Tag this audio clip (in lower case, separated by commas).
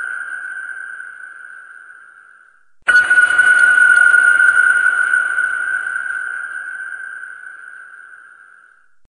ping, music